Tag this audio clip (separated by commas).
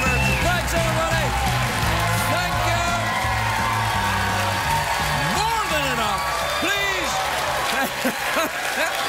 Speech, Music, monologue